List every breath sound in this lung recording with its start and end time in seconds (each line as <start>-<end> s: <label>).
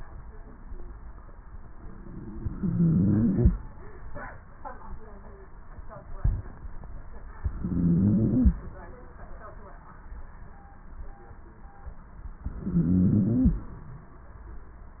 2.53-3.53 s: inhalation
2.53-3.53 s: stridor
7.45-8.59 s: inhalation
7.45-8.59 s: stridor
12.52-13.66 s: inhalation
12.52-13.66 s: stridor